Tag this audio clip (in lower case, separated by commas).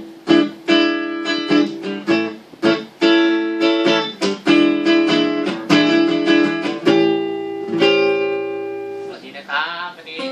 electric guitar, strum, guitar, plucked string instrument, musical instrument, music